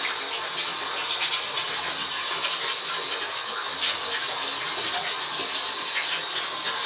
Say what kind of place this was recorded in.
restroom